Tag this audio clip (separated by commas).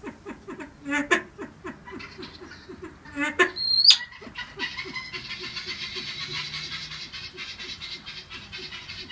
pheasant crowing